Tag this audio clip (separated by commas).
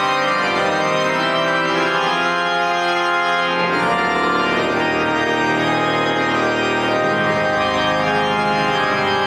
playing electronic organ